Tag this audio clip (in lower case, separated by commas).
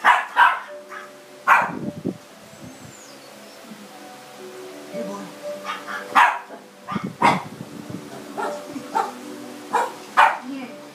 dog, bow-wow, whimper (dog), animal, yip, speech, music, domestic animals